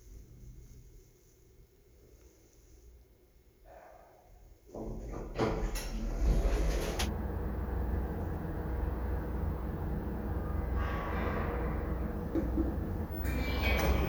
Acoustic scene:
elevator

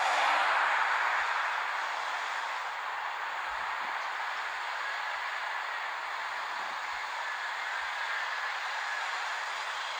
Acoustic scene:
street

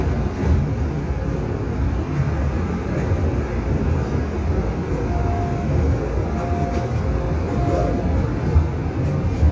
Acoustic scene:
subway train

